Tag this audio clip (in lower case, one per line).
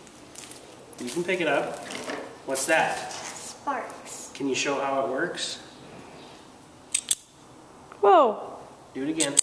inside a small room
speech